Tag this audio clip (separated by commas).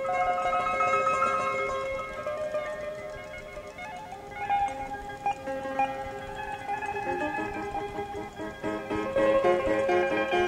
Glockenspiel, xylophone, Mallet percussion